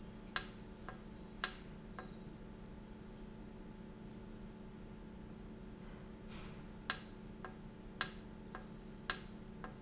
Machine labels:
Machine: valve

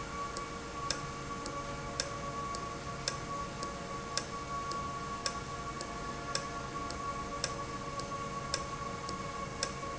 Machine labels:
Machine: valve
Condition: normal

